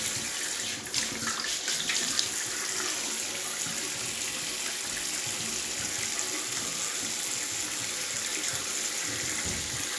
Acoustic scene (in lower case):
restroom